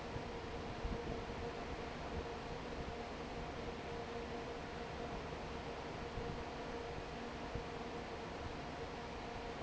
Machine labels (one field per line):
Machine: fan